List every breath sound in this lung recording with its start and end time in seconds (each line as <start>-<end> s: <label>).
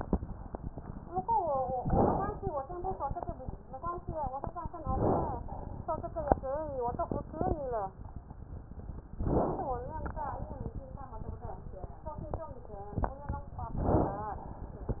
1.76-2.49 s: inhalation
1.76-2.49 s: crackles
4.82-5.50 s: inhalation
4.82-5.50 s: crackles
9.15-9.83 s: inhalation
9.15-9.83 s: crackles
13.72-14.40 s: inhalation
13.72-14.40 s: crackles